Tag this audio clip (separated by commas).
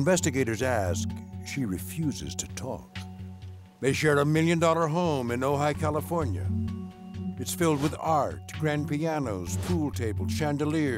Speech, Music